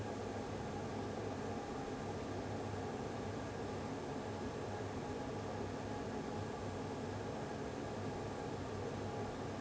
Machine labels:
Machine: fan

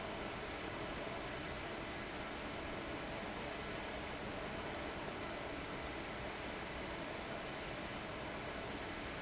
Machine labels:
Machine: fan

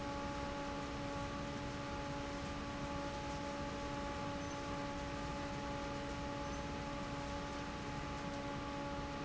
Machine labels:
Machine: fan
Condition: normal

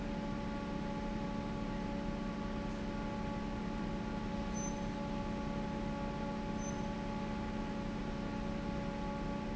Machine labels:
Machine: fan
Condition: normal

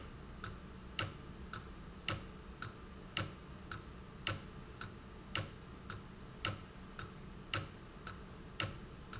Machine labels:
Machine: valve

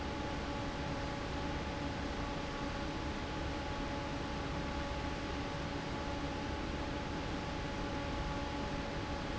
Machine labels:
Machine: fan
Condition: normal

